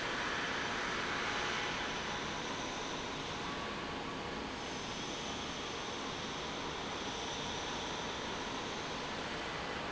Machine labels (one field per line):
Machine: pump